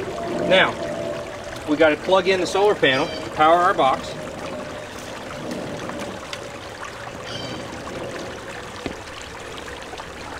Water rushes nearby as a man speaks loudly